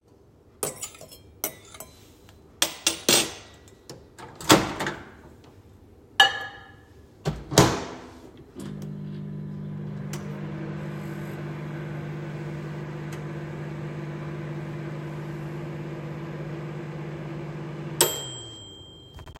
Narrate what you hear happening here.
I put my food on the plate with the fork and a knife, put it in a microwave, start a microwave. When it was warm, the microwave stopped.